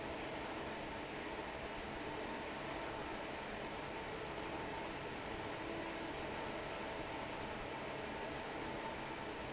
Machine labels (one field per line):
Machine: fan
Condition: normal